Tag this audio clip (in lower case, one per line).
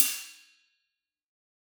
hi-hat
cymbal
musical instrument
percussion
music